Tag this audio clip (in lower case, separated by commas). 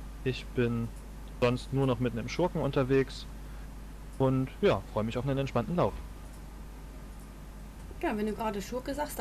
speech